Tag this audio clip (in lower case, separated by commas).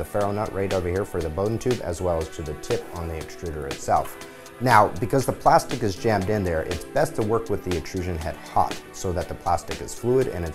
music, speech